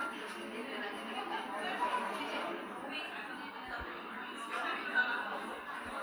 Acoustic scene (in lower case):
cafe